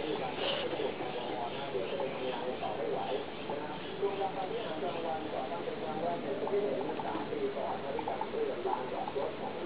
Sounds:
bird, speech

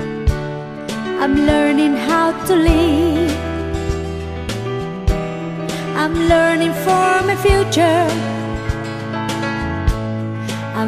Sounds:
music

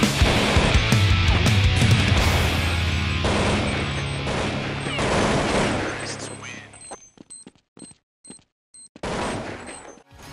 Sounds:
music, speech

